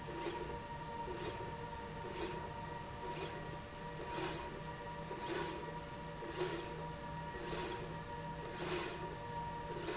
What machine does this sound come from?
slide rail